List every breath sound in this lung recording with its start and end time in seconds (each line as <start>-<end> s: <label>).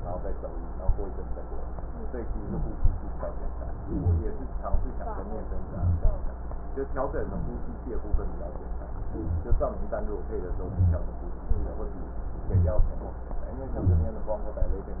2.18-2.73 s: inhalation
3.83-4.65 s: inhalation
5.66-6.34 s: inhalation
7.15-7.74 s: inhalation
9.01-9.51 s: inhalation
10.51-11.10 s: inhalation
12.54-13.13 s: inhalation
13.68-14.27 s: inhalation